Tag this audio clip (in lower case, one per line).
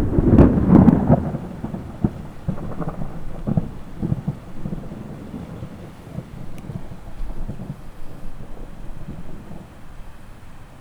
thunderstorm
thunder